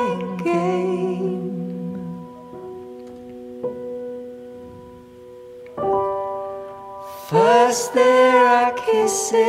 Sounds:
electric piano, music

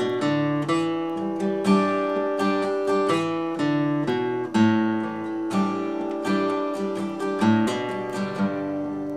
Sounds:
strum, plucked string instrument, acoustic guitar, musical instrument, guitar, music

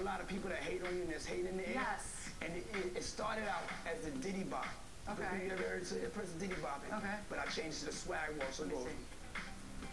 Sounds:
speech, music

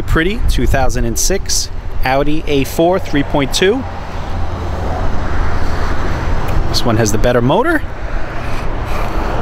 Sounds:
vehicle, car, fixed-wing aircraft, speech

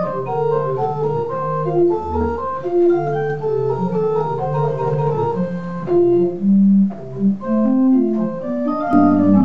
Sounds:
music, musical instrument, keyboard (musical), organ

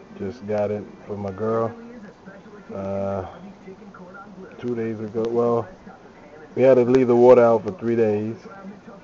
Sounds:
speech

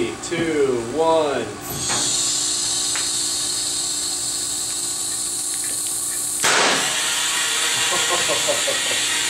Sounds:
speech

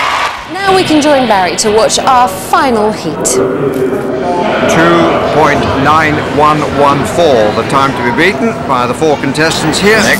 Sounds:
speech

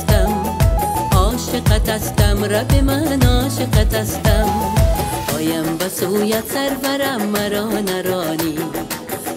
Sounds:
music, gospel music

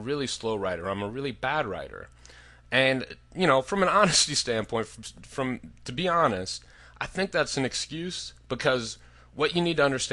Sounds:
speech

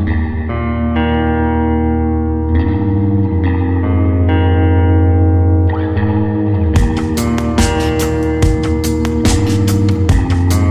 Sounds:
reverberation, music

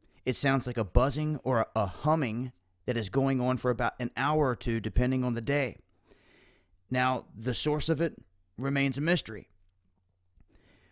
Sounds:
speech

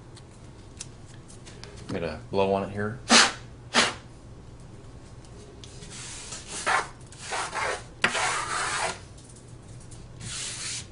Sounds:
speech, inside a small room

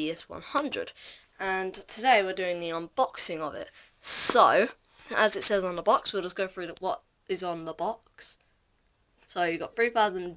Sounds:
speech

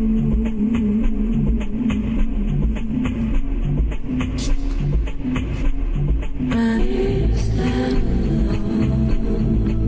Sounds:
music

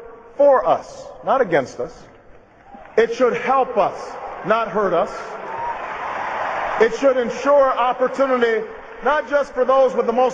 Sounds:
speech, monologue, man speaking

